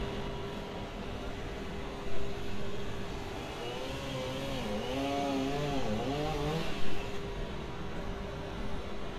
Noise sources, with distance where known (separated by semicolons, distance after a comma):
chainsaw, far